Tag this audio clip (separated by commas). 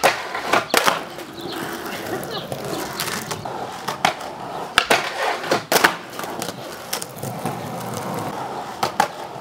skateboarding, Skateboard